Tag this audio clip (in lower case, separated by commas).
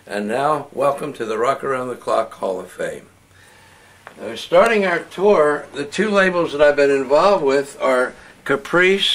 speech